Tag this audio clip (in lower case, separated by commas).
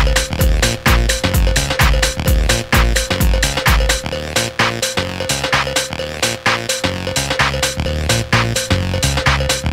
music, electronic music